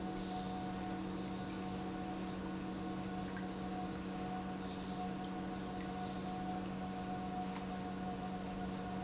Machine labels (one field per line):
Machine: pump